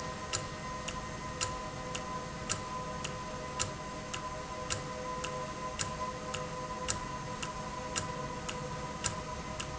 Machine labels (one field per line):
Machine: valve